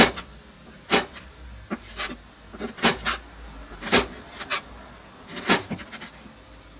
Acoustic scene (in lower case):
kitchen